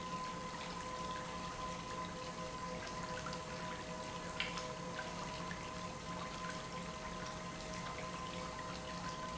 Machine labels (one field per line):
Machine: pump